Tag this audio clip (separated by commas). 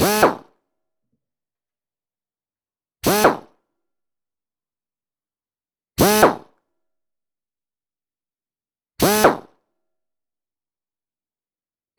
Drill, Power tool, Tools